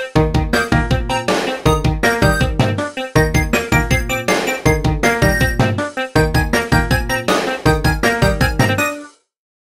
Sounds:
video game music, music

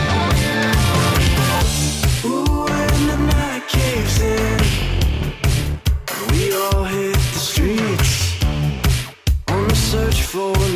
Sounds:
music

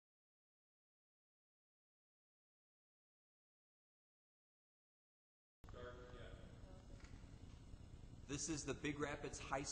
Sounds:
speech

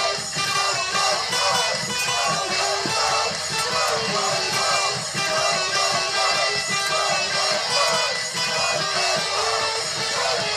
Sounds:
guitar, strum, music, musical instrument, plucked string instrument, electric guitar

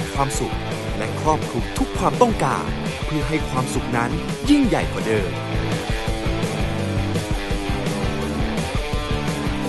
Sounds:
speech, music

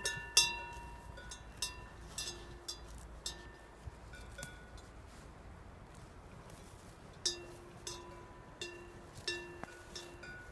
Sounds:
bovinae cowbell

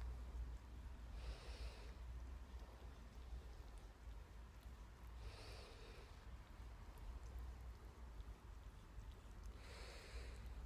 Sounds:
hiss

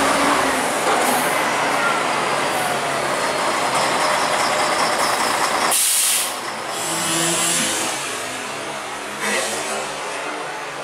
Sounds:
inside a public space, vehicle, bus

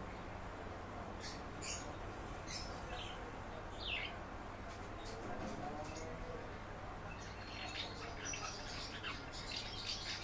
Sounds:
barn swallow calling

